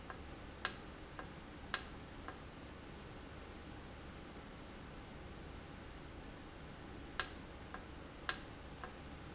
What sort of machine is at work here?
valve